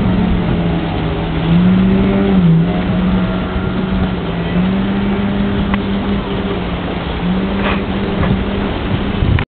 A distant motor runs and water ripples